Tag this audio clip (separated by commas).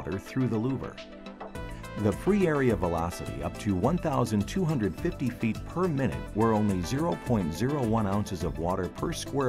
Music, Speech